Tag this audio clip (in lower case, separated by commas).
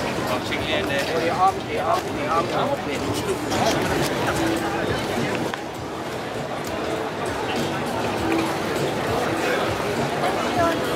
speech, music